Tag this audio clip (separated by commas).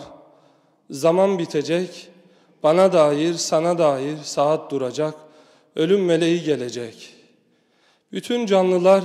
Speech